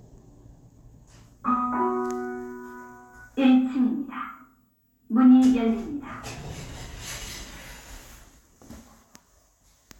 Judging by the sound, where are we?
in an elevator